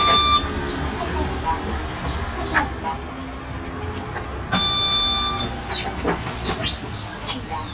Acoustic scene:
bus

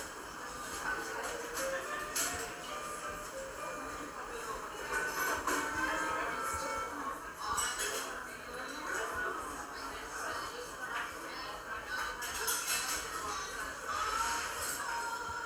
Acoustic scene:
cafe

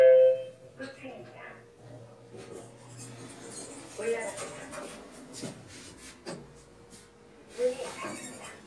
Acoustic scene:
elevator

